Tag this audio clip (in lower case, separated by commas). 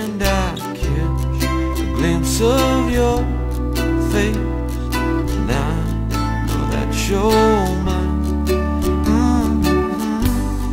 tender music, music